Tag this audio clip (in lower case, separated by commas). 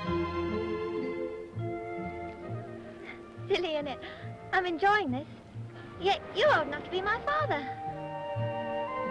music, speech